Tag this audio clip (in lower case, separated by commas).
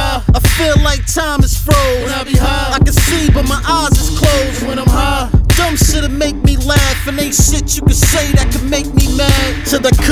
music